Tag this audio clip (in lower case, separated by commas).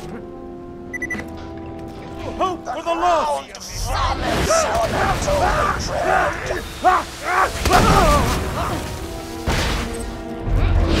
speech, music